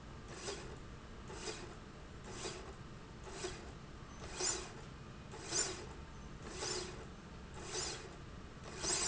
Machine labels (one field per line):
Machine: slide rail